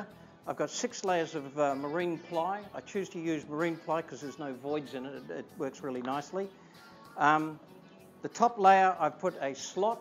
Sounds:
speech, music

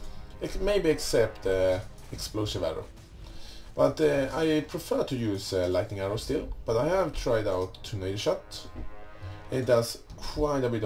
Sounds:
speech, music

